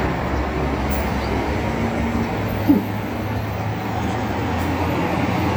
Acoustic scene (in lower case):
street